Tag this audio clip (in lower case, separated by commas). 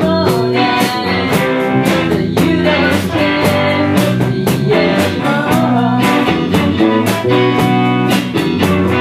music